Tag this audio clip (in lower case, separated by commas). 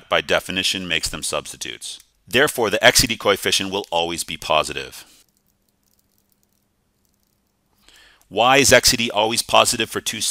speech